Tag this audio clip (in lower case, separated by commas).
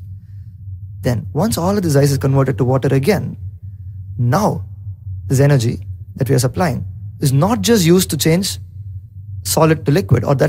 speech, male speech